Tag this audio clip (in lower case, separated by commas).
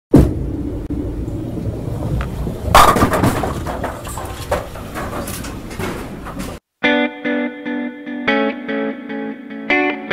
music